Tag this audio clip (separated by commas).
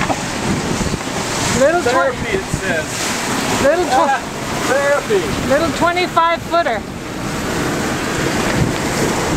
Wind, Sailboat, Boat, Wind noise (microphone)